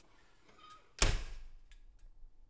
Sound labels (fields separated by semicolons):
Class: window; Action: closing